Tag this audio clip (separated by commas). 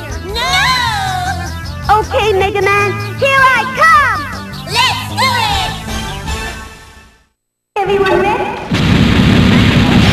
Speech, Music